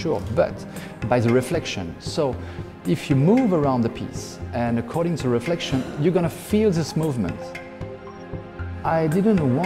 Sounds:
Speech, Music

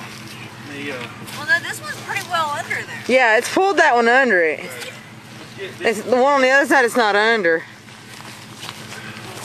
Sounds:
Speech

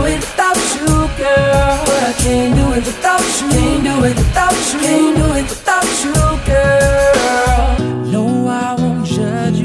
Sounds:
Music

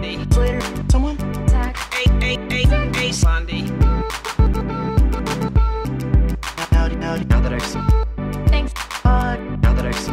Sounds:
Music

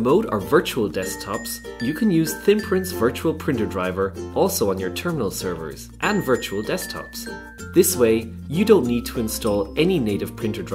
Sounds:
Speech, Music

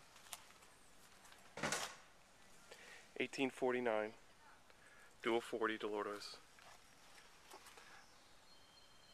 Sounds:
Speech

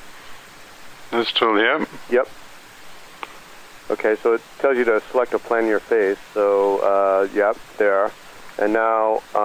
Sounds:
Pink noise, Speech

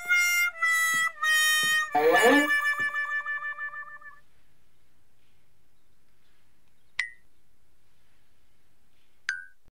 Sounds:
Music

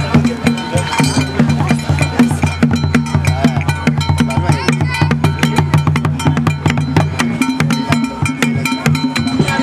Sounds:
Music, Speech

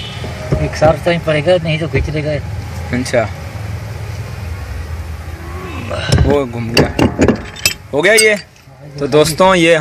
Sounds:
Speech

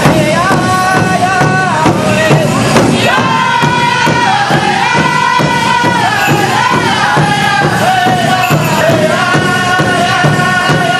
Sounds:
Music

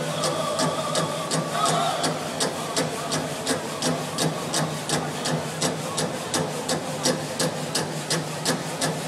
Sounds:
Speech, Music

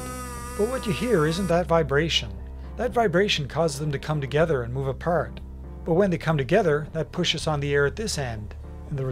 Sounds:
Speech

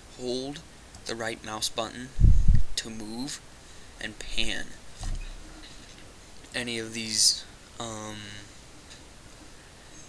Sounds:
Speech

